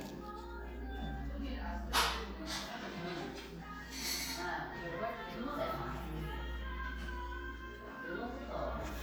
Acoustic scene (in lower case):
crowded indoor space